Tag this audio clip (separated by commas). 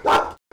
Bark, Dog, Animal, Domestic animals